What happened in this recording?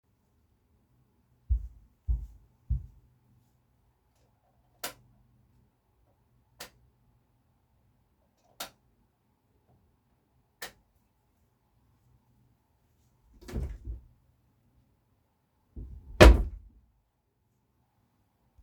I entered the bedroom and turned on the light using the light switch a couple times. After that, I opened a wardrobe and looked inside it. I then closed the drawer again.